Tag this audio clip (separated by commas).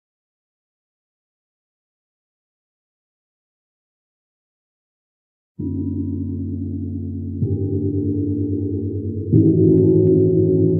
playing gong